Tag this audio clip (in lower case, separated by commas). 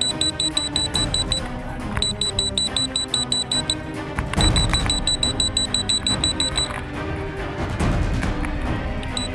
music